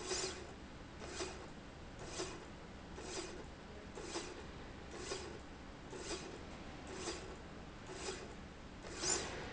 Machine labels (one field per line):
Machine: slide rail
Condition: normal